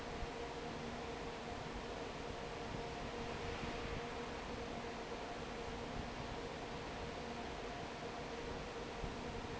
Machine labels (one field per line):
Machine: fan